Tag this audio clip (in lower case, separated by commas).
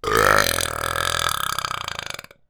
eructation